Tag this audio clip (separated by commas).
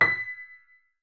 Piano, Musical instrument, Keyboard (musical), Music